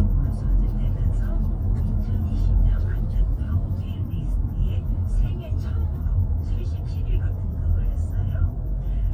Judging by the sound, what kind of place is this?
car